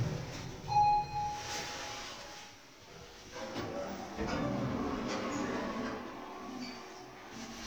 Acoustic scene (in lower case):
elevator